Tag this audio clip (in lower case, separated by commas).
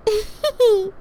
chuckle, laughter, human voice, giggle